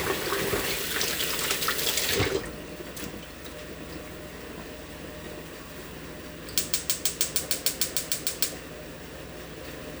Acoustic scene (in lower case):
kitchen